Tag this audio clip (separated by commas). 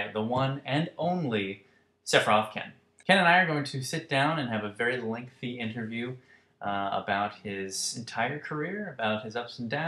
Speech